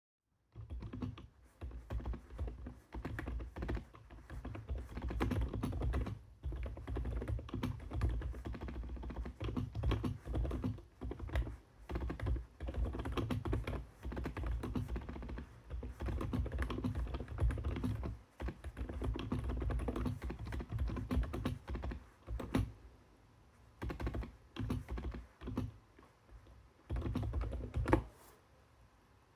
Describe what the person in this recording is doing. I type on the keyboard. In the background noise from outside (open window) is heard.